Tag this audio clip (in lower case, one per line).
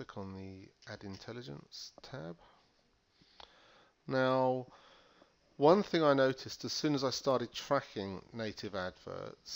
speech